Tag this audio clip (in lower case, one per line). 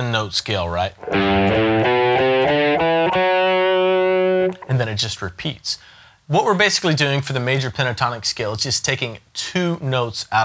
strum
electric guitar
guitar
musical instrument
speech
plucked string instrument
music